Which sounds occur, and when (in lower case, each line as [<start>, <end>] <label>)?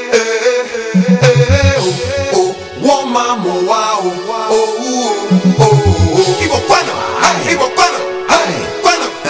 [0.00, 2.53] male singing
[0.00, 9.25] music
[2.79, 5.28] male singing
[5.56, 8.04] male singing
[8.27, 8.69] male singing
[8.83, 9.10] male singing